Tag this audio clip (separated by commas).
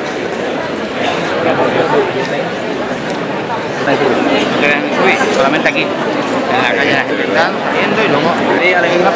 Speech